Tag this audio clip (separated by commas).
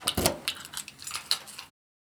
Keys jangling, home sounds